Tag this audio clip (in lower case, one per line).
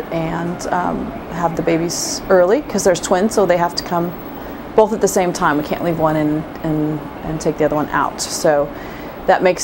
speech